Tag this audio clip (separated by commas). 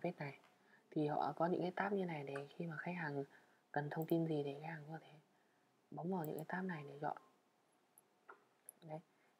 Speech